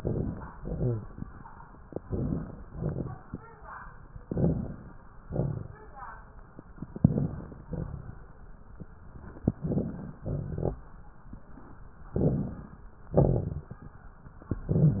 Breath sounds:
0.00-0.55 s: inhalation
0.00-0.55 s: crackles
0.57-1.12 s: exhalation
0.57-1.12 s: rhonchi
2.03-2.58 s: inhalation
2.03-2.58 s: crackles
2.66-3.21 s: exhalation
2.66-3.21 s: crackles
4.27-4.95 s: inhalation
4.27-4.95 s: crackles
5.25-5.86 s: exhalation
5.25-5.86 s: crackles
6.96-7.65 s: inhalation
6.96-7.65 s: crackles
7.72-8.41 s: exhalation
7.72-8.41 s: crackles
9.58-10.21 s: inhalation
9.58-10.21 s: crackles
10.24-10.84 s: exhalation
10.24-10.84 s: crackles
12.16-12.85 s: inhalation
12.16-12.85 s: crackles
13.15-13.83 s: exhalation
13.15-13.83 s: crackles

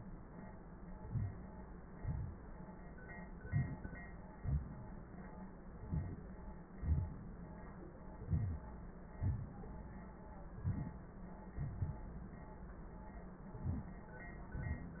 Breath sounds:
0.97-1.65 s: inhalation
1.99-2.73 s: exhalation
3.36-4.10 s: inhalation
4.38-5.35 s: exhalation
5.73-6.28 s: inhalation
6.79-7.82 s: exhalation
8.22-8.82 s: inhalation
9.18-10.06 s: exhalation
10.55-11.18 s: inhalation
11.55-12.31 s: exhalation
13.47-14.06 s: inhalation

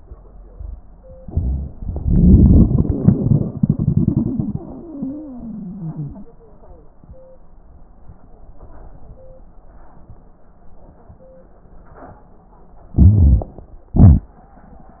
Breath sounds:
1.23-1.75 s: inhalation
1.76-4.59 s: crackles
1.76-6.27 s: exhalation
4.55-6.27 s: wheeze
12.99-13.53 s: inhalation
12.99-13.53 s: crackles
13.99-14.30 s: exhalation
13.99-14.30 s: crackles

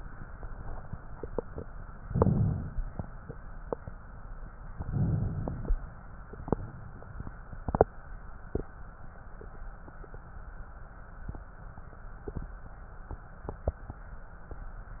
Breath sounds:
1.96-3.12 s: inhalation
4.73-5.89 s: inhalation

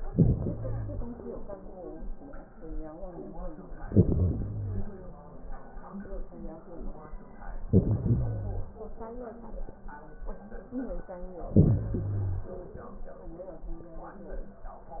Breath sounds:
0.00-1.19 s: inhalation
3.82-5.01 s: inhalation
7.62-8.82 s: inhalation
11.42-12.61 s: inhalation

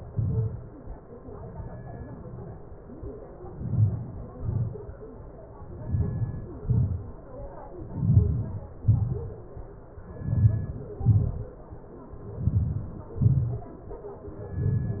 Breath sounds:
3.61-4.17 s: inhalation
4.42-4.80 s: exhalation
5.98-6.46 s: inhalation
6.66-7.04 s: exhalation
8.05-8.57 s: inhalation
8.83-9.26 s: exhalation
10.32-10.94 s: inhalation
11.11-11.56 s: exhalation
12.48-12.93 s: inhalation
13.31-13.64 s: exhalation
14.72-15.00 s: inhalation

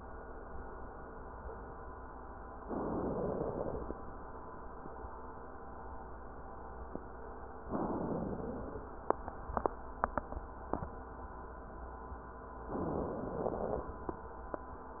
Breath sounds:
2.63-3.34 s: inhalation
3.33-4.04 s: exhalation
7.72-8.24 s: inhalation
8.23-8.83 s: exhalation
12.68-13.38 s: inhalation
13.36-13.96 s: exhalation

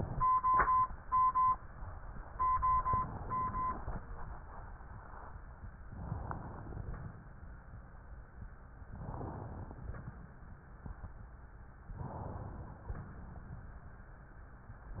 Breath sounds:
2.86-4.03 s: inhalation
5.90-6.86 s: inhalation
8.91-9.81 s: inhalation
12.00-12.85 s: inhalation

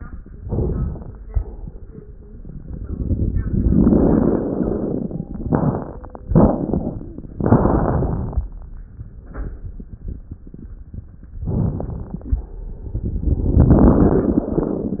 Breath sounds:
0.40-1.22 s: inhalation
0.40-1.22 s: crackles
1.25-2.07 s: exhalation
11.48-12.30 s: inhalation
11.48-12.30 s: crackles
12.35-13.17 s: exhalation

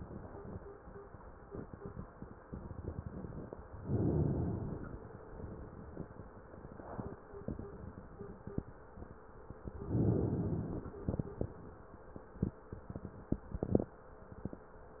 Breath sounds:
3.77-5.04 s: inhalation
9.80-11.07 s: inhalation

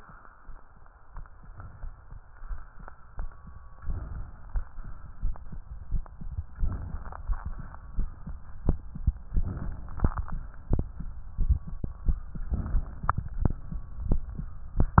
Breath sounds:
3.78-4.54 s: inhalation
6.48-7.24 s: inhalation
7.14-7.87 s: exhalation
9.31-9.99 s: inhalation
9.98-10.71 s: exhalation
12.53-13.20 s: inhalation

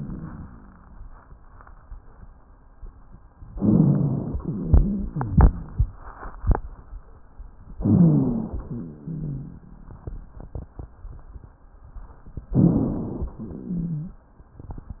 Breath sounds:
3.55-4.38 s: inhalation
3.55-4.38 s: rhonchi
4.44-5.94 s: exhalation
4.44-5.94 s: rhonchi
7.80-8.71 s: inhalation
7.80-8.71 s: rhonchi
8.71-10.17 s: exhalation
8.75-10.21 s: rhonchi
12.50-13.38 s: inhalation
13.38-14.25 s: exhalation

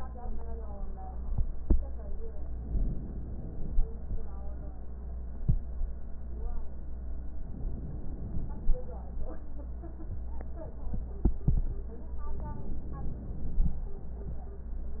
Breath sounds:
2.53-3.72 s: inhalation
7.55-8.73 s: inhalation
12.51-13.69 s: inhalation

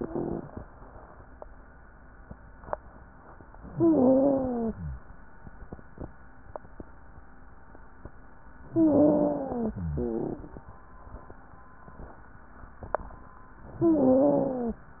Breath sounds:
3.67-5.04 s: inhalation
3.67-5.04 s: wheeze
8.67-9.92 s: inhalation
8.67-9.92 s: wheeze
9.94-10.56 s: exhalation
9.94-10.56 s: wheeze
13.79-14.86 s: inhalation
13.79-14.86 s: wheeze

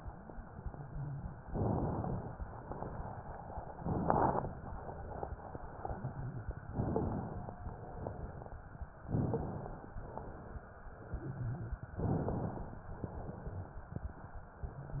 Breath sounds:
1.50-2.40 s: inhalation
2.45-3.21 s: exhalation
3.79-4.57 s: inhalation
3.79-4.57 s: crackles
6.71-7.59 s: inhalation
7.65-8.61 s: exhalation
7.65-8.61 s: crackles
9.05-9.99 s: crackles
9.11-9.98 s: inhalation
10.02-10.89 s: exhalation
11.07-11.79 s: wheeze
11.98-12.89 s: crackles
12.01-12.88 s: inhalation
13.01-13.89 s: exhalation

